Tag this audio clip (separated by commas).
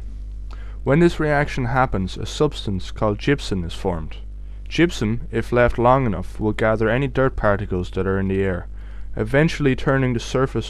Speech